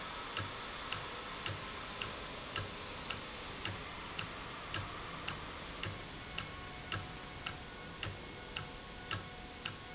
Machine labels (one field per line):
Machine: valve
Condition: normal